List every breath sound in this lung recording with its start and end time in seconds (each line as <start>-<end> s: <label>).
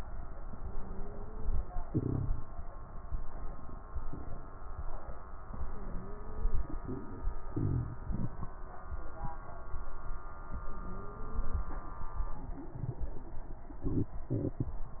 0.50-1.56 s: inhalation
0.50-1.56 s: wheeze
5.47-6.54 s: inhalation
5.47-6.54 s: wheeze
10.57-11.64 s: inhalation
10.57-11.64 s: wheeze